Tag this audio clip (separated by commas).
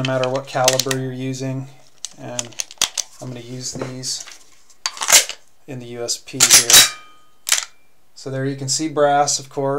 cap gun shooting